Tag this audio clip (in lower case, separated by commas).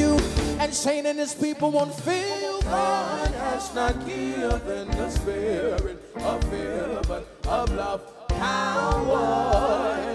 music